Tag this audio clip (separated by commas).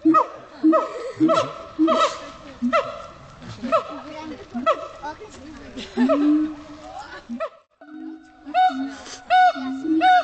gibbon howling